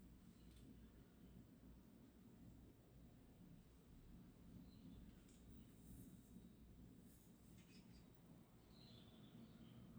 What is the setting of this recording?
park